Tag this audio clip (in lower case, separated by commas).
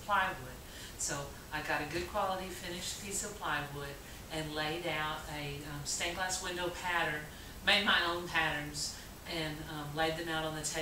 speech